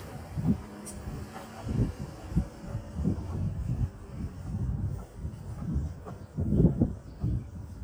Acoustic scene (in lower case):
residential area